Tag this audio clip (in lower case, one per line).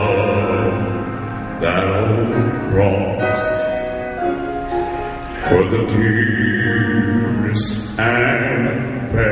music